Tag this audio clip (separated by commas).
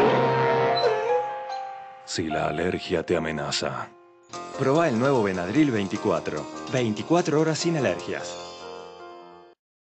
Speech, Music